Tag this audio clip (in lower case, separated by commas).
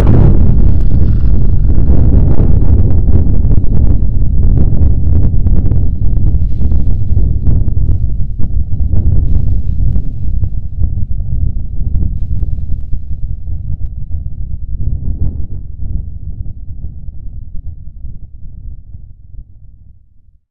thunderstorm, thunder